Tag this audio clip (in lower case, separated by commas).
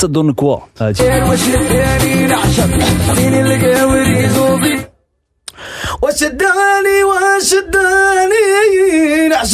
speech, music